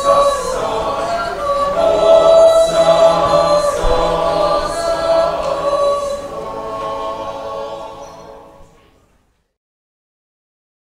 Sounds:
yodelling

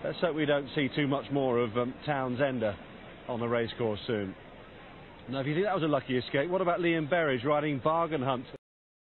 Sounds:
speech

